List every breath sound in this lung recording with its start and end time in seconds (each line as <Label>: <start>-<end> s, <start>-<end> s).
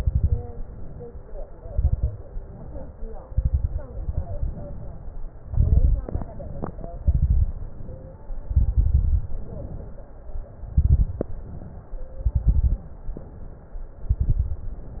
Inhalation: 0.55-1.54 s, 2.24-3.23 s, 4.03-5.32 s, 6.14-7.05 s, 9.41-10.30 s, 11.25-12.14 s, 12.90-13.79 s
Exhalation: 0.00-0.49 s, 1.65-2.16 s, 3.31-3.87 s, 5.43-6.10 s, 7.05-7.87 s, 8.49-9.31 s, 10.74-11.32 s, 12.24-12.86 s, 14.08-14.78 s
Crackles: 0.00-0.49 s, 1.65-2.16 s, 3.31-3.87 s, 5.43-6.10 s, 7.05-7.87 s, 8.49-9.31 s, 10.74-11.32 s, 12.24-12.86 s, 14.08-14.78 s